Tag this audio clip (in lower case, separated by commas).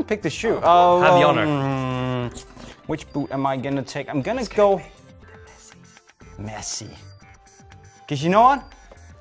music, speech